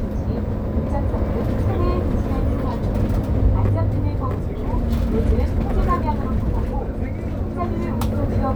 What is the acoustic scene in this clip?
bus